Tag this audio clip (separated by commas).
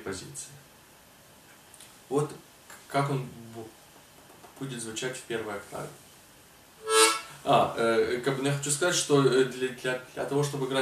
playing harmonica